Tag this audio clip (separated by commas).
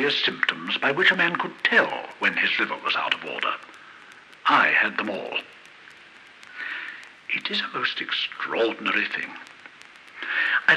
Speech